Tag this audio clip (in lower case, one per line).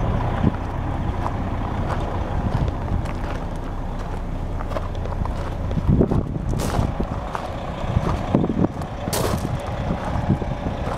bus
vehicle